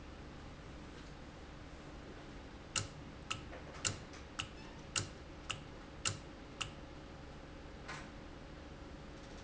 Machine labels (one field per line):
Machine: valve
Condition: normal